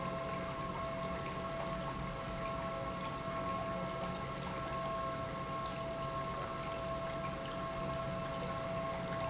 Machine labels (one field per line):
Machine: pump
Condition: normal